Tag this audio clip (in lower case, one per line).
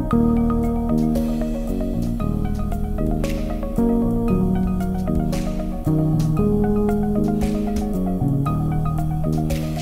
music